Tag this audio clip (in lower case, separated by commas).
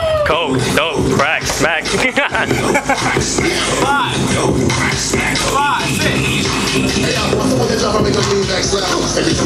music, speech